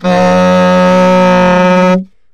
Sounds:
Music, Wind instrument, Musical instrument

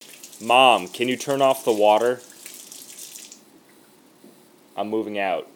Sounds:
Human voice, Speech

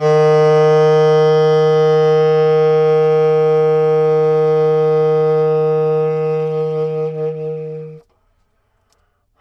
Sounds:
Musical instrument, Music, Wind instrument

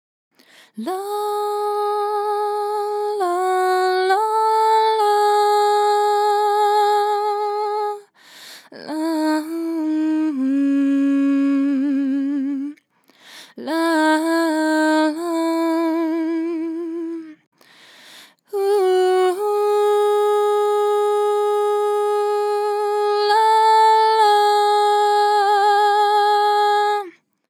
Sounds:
Human voice, Female singing, Singing

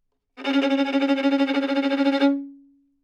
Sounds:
Bowed string instrument, Music, Musical instrument

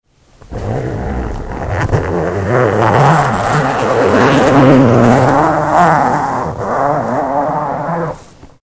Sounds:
Domestic sounds, Zipper (clothing)

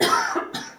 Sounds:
Respiratory sounds, Cough

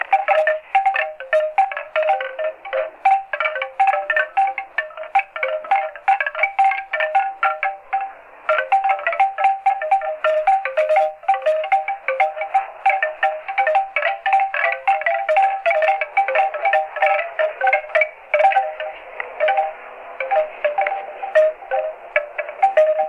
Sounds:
Chime, Wind chime, Bell

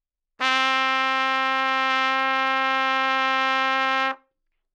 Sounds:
Brass instrument, Music, Musical instrument, Trumpet

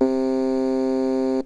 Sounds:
Musical instrument, Keyboard (musical), Music

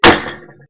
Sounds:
Gunshot, Explosion

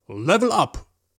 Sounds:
man speaking, Speech, Human voice

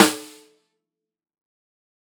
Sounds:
Percussion, Musical instrument, Music, Drum, Snare drum

